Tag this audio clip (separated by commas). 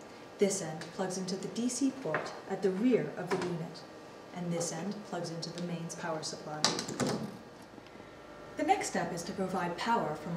Speech